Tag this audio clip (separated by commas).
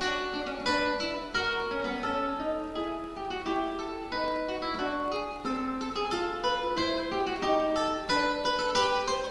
Music, Musical instrument